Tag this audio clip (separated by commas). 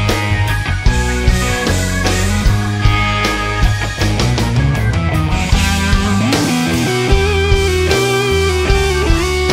Rock music, Music, Progressive rock